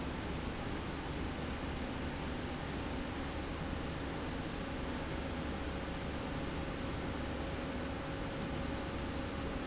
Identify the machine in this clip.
slide rail